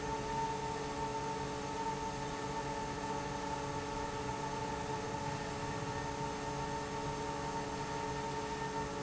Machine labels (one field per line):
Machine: fan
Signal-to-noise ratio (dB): -6 dB